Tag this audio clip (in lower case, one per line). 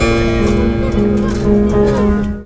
keyboard (musical)
music
musical instrument